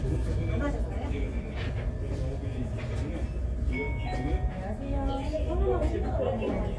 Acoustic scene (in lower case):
crowded indoor space